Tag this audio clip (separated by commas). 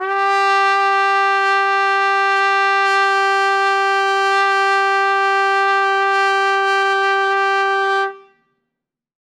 Musical instrument, Music, Brass instrument